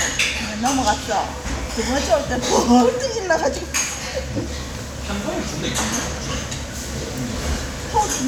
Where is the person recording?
in a restaurant